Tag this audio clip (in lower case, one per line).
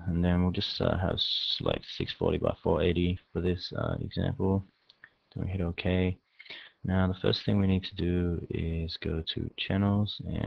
speech
liquid